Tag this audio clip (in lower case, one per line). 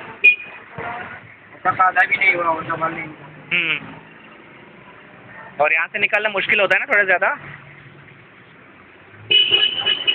speech